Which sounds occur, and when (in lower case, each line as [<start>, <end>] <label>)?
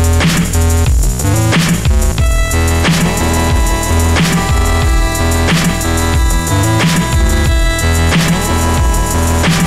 [0.01, 9.65] music